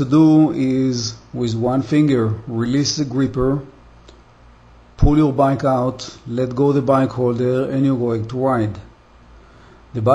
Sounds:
speech

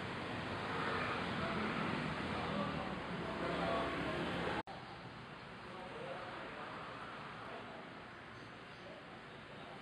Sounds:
vehicle
speech

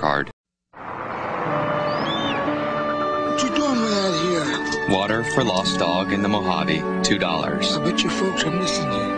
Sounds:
speech
music

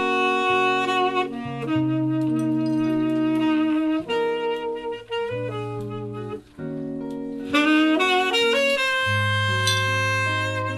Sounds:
playing saxophone
brass instrument
saxophone

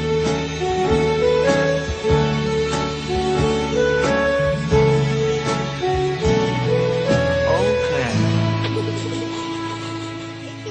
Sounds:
speech
music

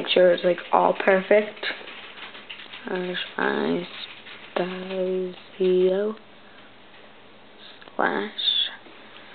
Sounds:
speech
inside a small room

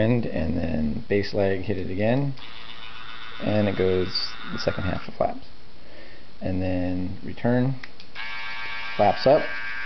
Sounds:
speech

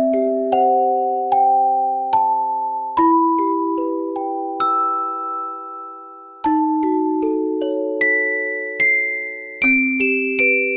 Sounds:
music

